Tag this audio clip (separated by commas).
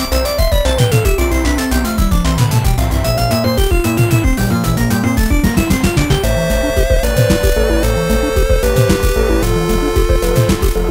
Video game music, Music